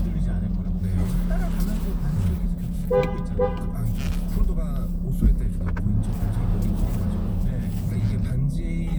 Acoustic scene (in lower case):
car